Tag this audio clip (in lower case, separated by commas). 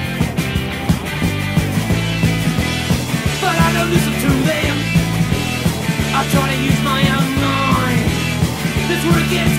music, punk rock